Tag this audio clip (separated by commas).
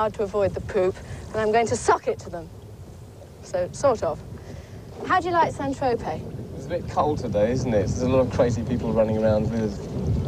Vehicle, Rowboat, Speech